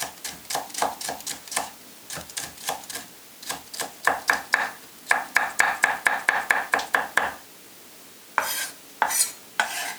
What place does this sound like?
kitchen